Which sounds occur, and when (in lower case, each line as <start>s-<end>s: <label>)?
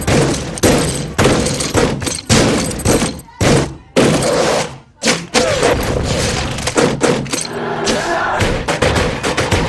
0.0s-9.6s: music
4.9s-5.3s: speech
7.2s-7.5s: generic impact sounds
7.8s-8.4s: shout
8.7s-9.6s: cheering